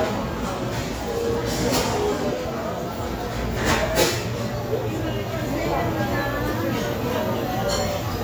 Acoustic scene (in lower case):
crowded indoor space